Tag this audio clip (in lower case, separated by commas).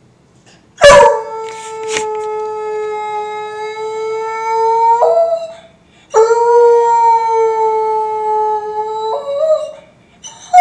dog baying